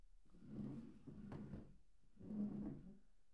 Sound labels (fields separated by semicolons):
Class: furniture moving; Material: wooden